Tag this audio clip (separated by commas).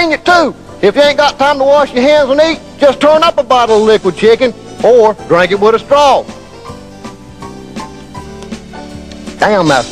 Speech, Music